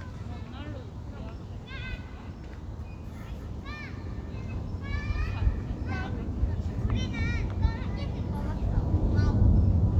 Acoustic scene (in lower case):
residential area